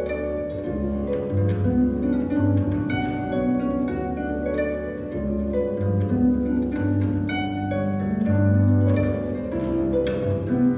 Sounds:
folk music, music

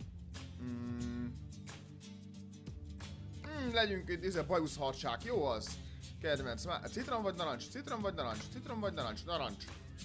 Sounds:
speech, music

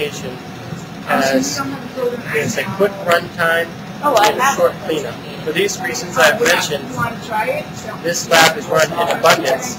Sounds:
speech

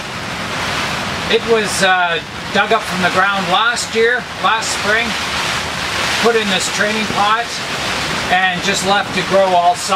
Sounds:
speech

